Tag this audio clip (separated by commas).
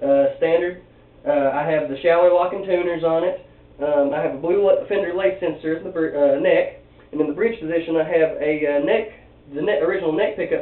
Speech